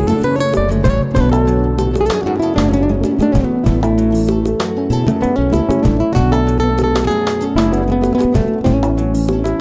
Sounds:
Music

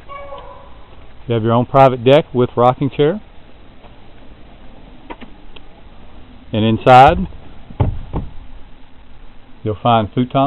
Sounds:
Speech

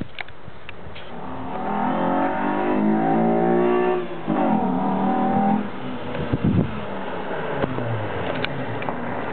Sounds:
Car, revving, Vehicle

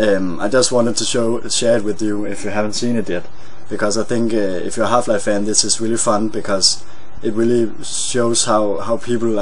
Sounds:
Speech

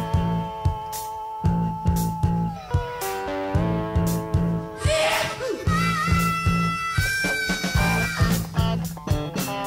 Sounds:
Music

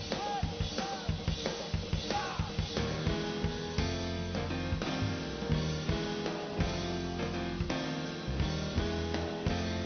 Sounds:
Music

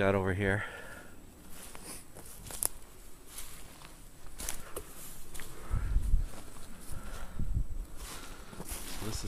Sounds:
Speech, outside, rural or natural

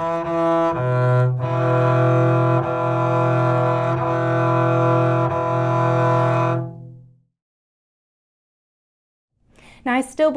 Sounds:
playing double bass

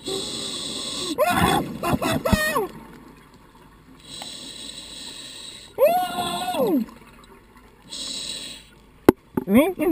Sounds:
Speech

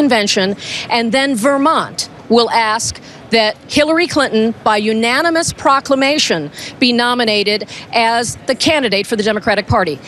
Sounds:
Speech

